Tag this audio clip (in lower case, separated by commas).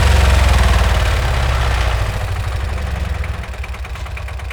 engine, idling